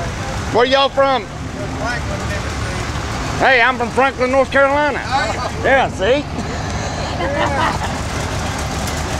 A man speaking to another man engine running